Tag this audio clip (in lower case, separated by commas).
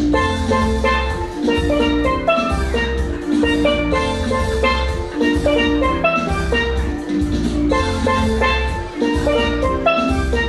music, musical instrument, steelpan